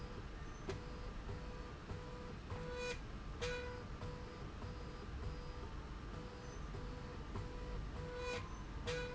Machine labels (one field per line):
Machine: slide rail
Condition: normal